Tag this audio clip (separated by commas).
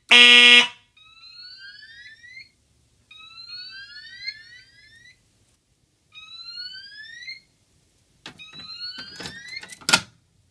Fire alarm